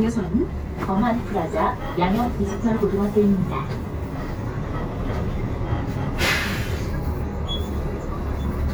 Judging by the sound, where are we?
on a bus